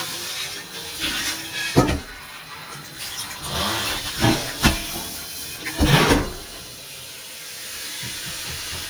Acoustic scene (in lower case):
kitchen